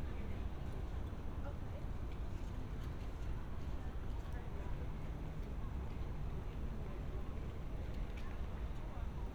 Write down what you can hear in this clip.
person or small group talking